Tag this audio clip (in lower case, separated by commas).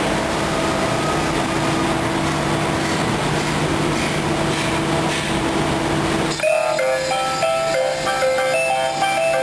music, sliding door